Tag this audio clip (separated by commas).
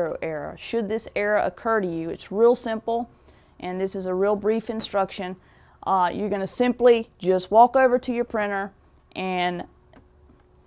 Speech